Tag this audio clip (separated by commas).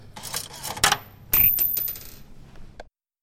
Domestic sounds, Coin (dropping)